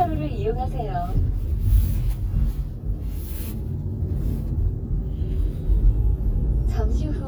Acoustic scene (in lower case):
car